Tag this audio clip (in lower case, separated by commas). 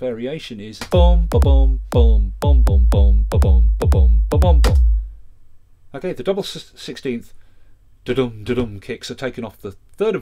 speech, music